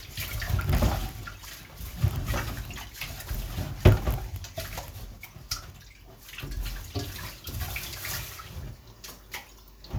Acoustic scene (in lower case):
kitchen